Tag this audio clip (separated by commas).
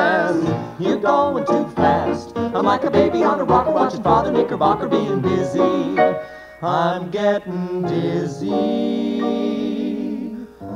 Music, Funny music